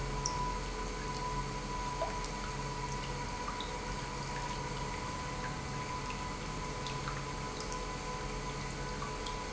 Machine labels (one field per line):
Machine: pump